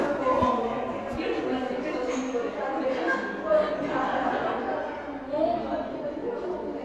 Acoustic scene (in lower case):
cafe